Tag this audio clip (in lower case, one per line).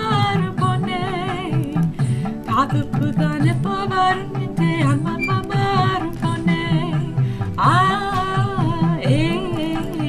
female singing
music